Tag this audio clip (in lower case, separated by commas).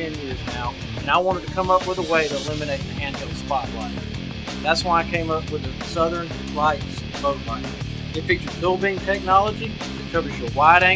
speech, music